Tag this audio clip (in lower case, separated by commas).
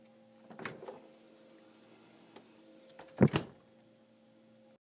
slam, door, home sounds